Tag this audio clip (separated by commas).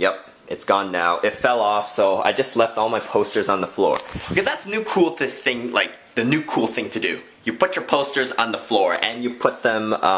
Speech